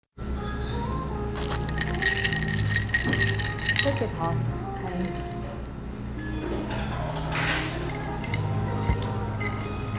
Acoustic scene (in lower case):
cafe